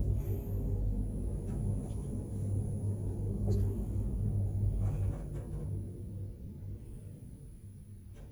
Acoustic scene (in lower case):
elevator